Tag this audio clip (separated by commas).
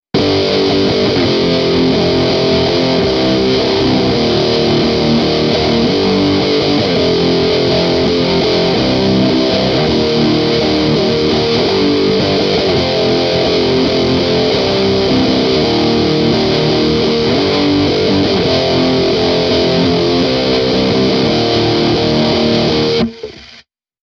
Musical instrument, Plucked string instrument, Guitar, Music